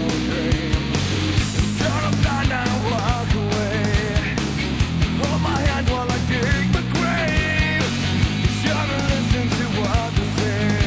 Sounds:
Music, Pop music

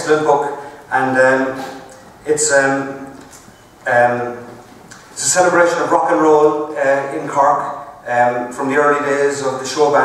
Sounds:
Speech

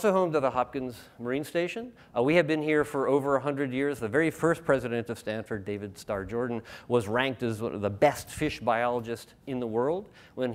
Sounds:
Speech

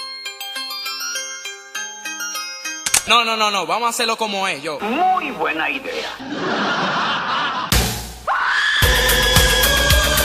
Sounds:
Music, Speech

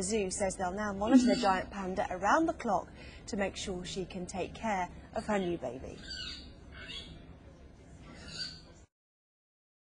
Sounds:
Speech

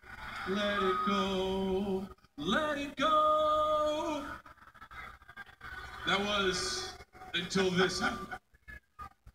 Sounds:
Speech, Male singing

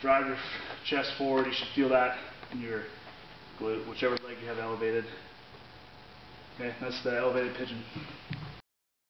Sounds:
Speech

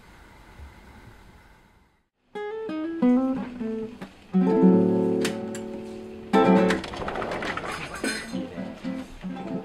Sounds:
Music, Speech

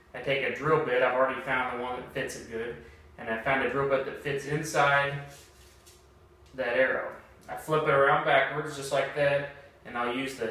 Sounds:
Speech

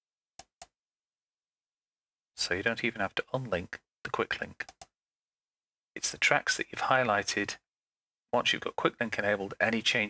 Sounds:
Speech

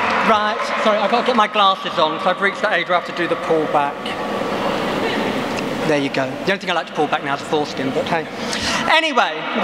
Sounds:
monologue, Male speech, Speech

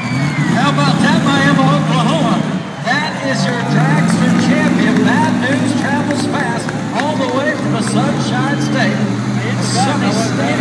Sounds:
Truck, Speech, Vehicle

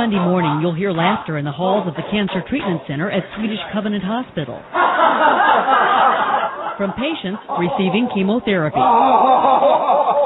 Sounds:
Speech

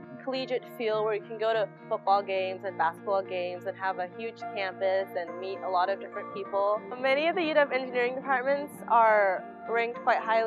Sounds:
Music, Speech

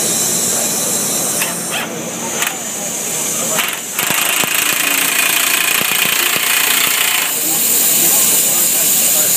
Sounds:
Speech

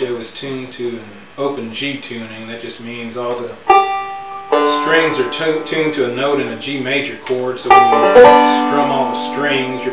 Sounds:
Music, Plucked string instrument, Speech, Musical instrument, Banjo

